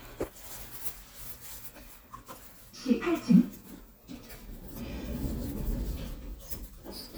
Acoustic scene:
elevator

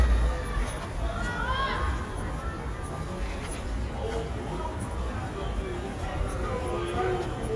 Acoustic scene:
residential area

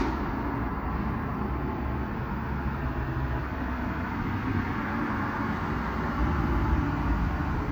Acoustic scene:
street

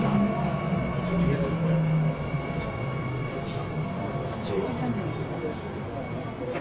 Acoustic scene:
subway train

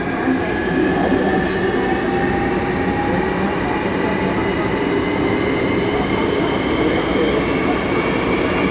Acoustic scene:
subway train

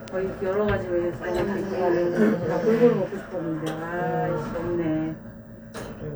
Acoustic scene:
elevator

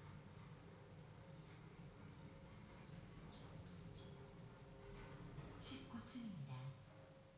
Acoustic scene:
elevator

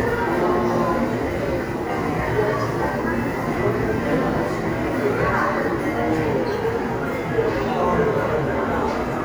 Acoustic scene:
subway station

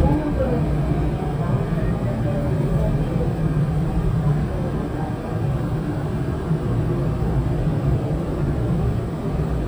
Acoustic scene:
subway train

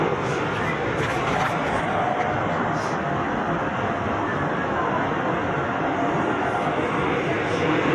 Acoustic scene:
subway train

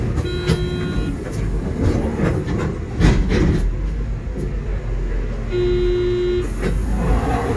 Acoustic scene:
bus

